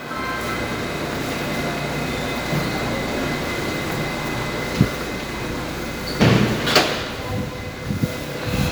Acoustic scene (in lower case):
subway station